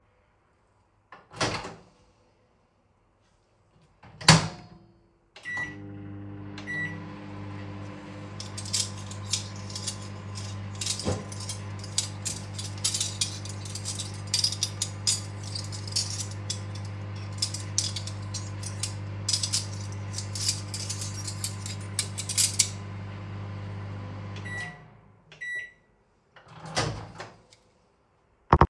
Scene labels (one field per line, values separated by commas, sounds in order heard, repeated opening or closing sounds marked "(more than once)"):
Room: kitchen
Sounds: microwave, cutlery and dishes